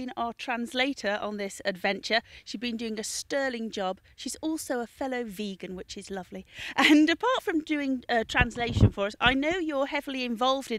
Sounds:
Speech

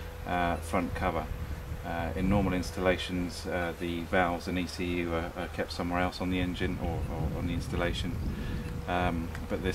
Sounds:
Speech

